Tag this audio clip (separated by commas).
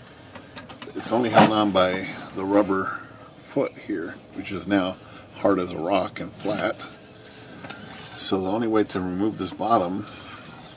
typing on typewriter